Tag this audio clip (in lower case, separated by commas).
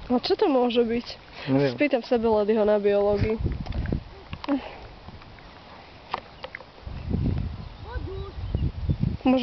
speech